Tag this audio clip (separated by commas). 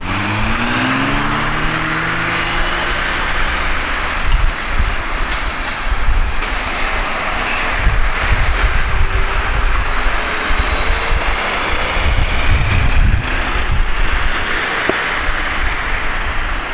Vehicle, Motor vehicle (road), roadway noise